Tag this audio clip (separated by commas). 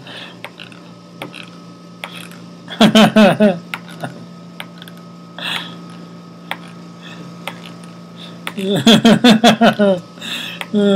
inside a large room or hall